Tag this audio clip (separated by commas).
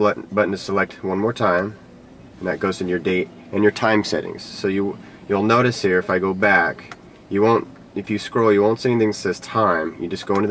Speech